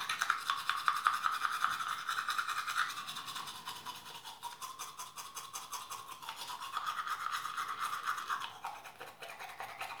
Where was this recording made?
in a restroom